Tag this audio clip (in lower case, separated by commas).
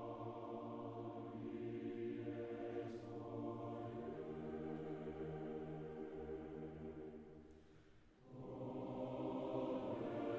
music, choir